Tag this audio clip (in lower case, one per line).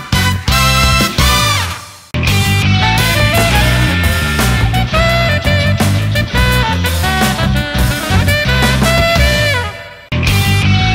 music